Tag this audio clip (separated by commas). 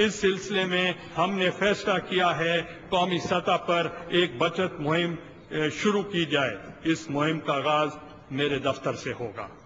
monologue, man speaking, Speech